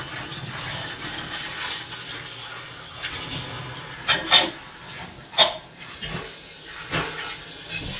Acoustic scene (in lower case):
kitchen